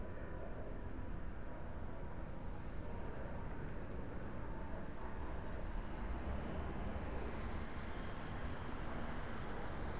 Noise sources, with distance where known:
large-sounding engine, far

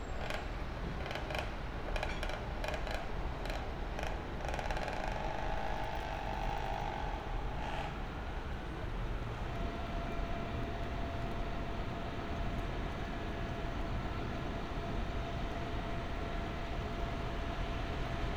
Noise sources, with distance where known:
small-sounding engine

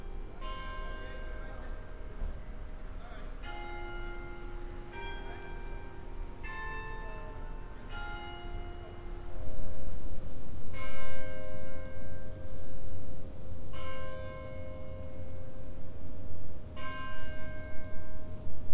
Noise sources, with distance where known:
unidentified alert signal, near

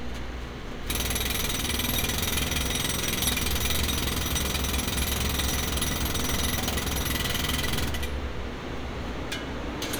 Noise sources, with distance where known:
engine of unclear size, far
jackhammer, near

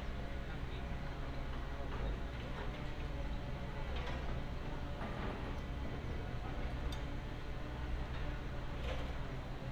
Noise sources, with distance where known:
background noise

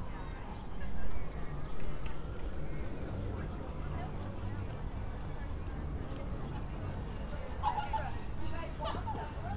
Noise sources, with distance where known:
siren
unidentified human voice, near

